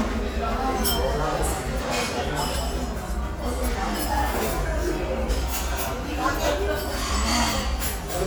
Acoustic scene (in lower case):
restaurant